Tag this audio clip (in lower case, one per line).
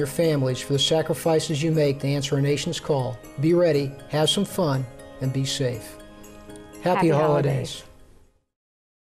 speech
music